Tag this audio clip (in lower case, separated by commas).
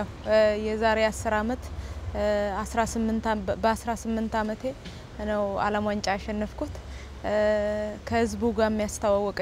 speech